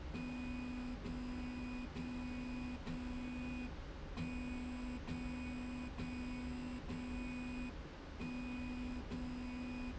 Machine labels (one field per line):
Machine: slide rail